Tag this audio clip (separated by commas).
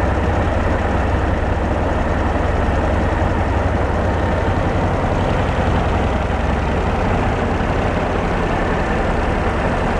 Vehicle